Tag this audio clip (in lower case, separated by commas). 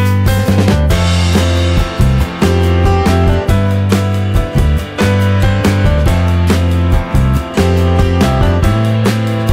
music